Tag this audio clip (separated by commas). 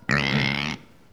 Animal, livestock